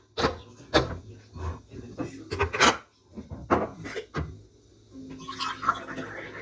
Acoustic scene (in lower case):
kitchen